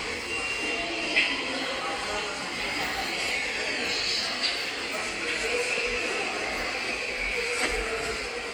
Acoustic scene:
subway station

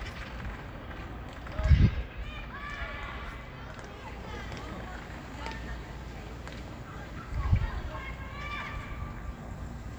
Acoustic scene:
park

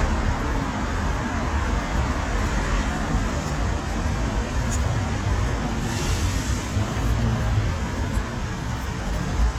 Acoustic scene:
street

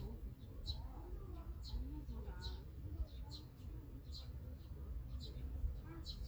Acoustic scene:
park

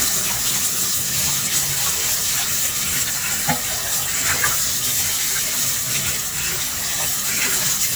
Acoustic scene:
kitchen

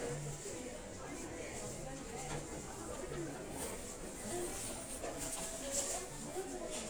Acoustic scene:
crowded indoor space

